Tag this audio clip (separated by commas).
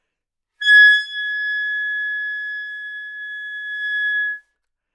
Music, Wind instrument, Musical instrument